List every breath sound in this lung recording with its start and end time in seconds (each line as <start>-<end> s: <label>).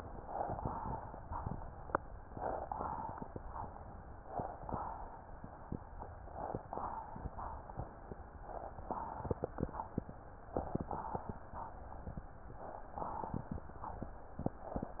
0.19-0.55 s: inhalation
0.55-1.28 s: exhalation
2.31-2.68 s: inhalation
2.68-3.31 s: exhalation
4.31-4.67 s: inhalation
4.69-5.32 s: exhalation
6.28-6.64 s: inhalation
6.68-7.32 s: exhalation
8.86-9.22 s: inhalation
9.28-9.91 s: exhalation
10.51-10.87 s: inhalation
10.99-11.62 s: exhalation
12.62-12.98 s: inhalation
13.07-13.71 s: exhalation
14.67-15.00 s: inhalation